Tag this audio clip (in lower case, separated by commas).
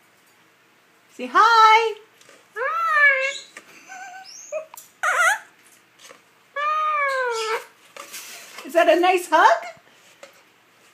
inside a small room, speech, bird, domestic animals